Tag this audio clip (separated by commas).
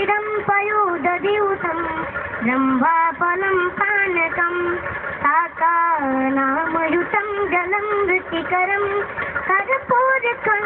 Mantra